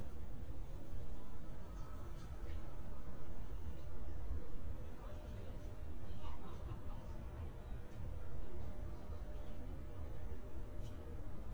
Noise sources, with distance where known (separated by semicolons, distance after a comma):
person or small group talking